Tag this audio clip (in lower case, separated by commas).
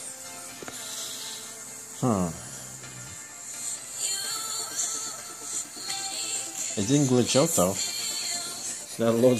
music, speech